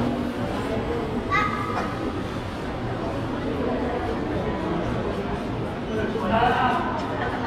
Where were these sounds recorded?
in a crowded indoor space